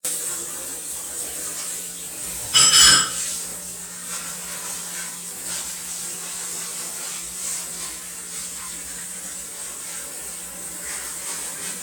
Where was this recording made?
in a kitchen